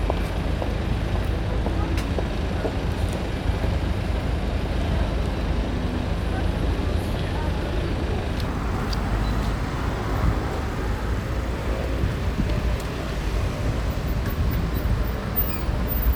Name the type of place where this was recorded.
street